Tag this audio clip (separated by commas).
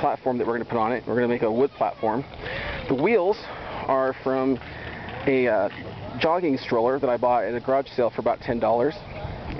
Speech